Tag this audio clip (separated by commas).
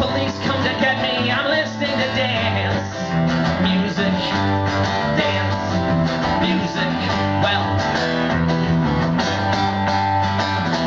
Soul music, Music